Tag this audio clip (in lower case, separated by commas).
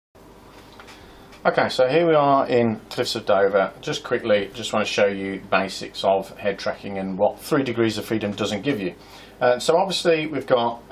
speech, inside a small room